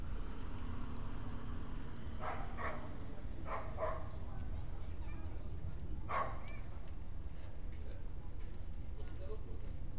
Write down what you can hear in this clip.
engine of unclear size, dog barking or whining